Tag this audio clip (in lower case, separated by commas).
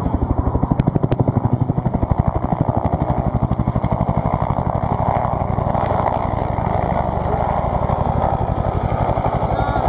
vehicle, aircraft, helicopter